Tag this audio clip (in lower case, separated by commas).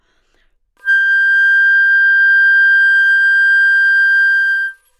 musical instrument, music, woodwind instrument